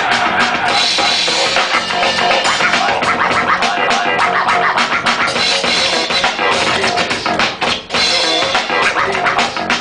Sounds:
music, scratching (performance technique)

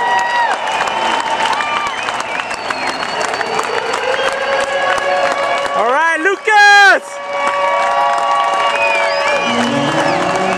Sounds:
speech, run, music

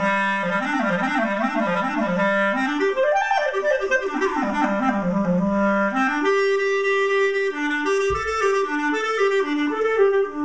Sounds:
playing clarinet

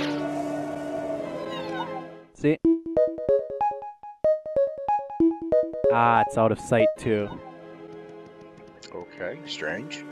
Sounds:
speech, music

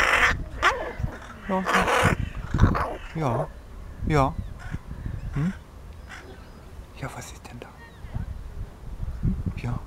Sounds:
crow cawing

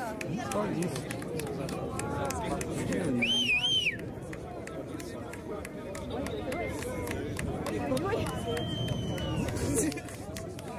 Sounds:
speech

